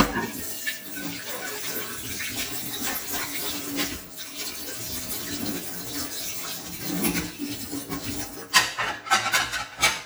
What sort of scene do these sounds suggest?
kitchen